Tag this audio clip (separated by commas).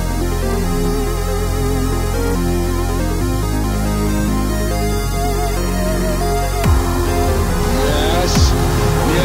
Music, Electronic music